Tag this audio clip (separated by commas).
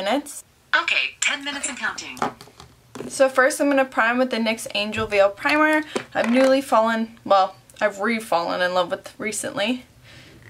Speech